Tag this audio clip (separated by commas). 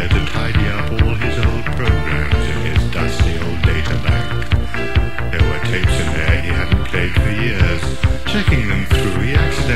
Music